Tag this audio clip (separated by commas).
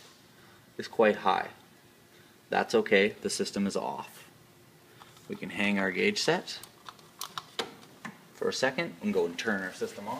Speech